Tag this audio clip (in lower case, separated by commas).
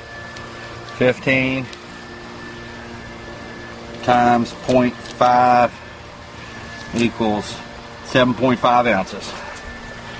air conditioning, speech